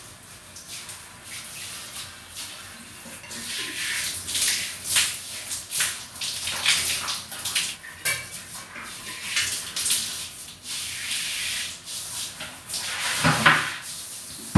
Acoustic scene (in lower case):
restroom